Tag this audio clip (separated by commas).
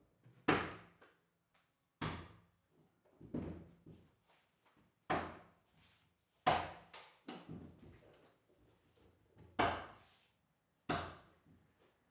Human voice, Speech, man speaking